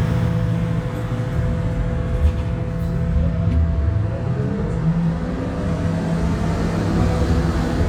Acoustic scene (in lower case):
bus